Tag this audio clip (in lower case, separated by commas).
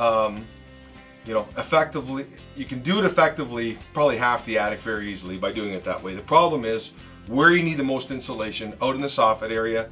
speech, music